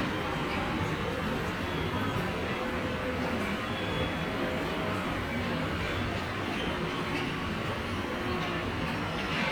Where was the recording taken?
in a subway station